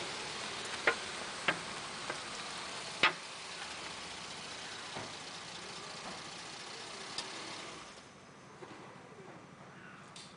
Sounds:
car, vehicle

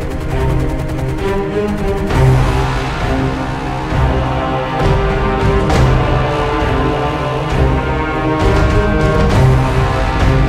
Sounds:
music

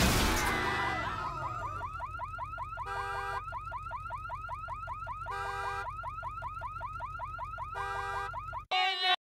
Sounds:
vehicle, speech

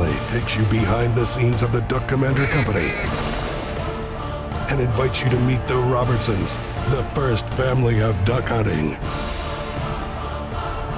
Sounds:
quack, speech, music

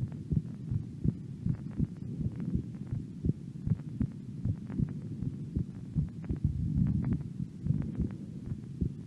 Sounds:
heart sounds

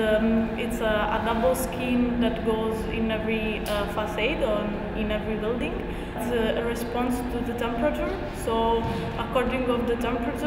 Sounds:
speech

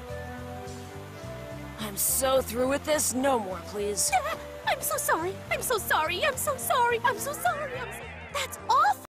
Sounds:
speech, music

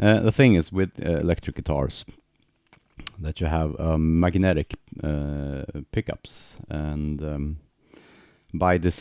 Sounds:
speech

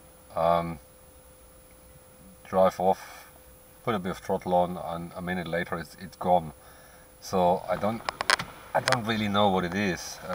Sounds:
speech

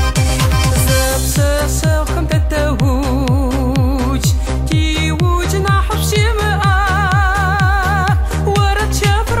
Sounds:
techno, music

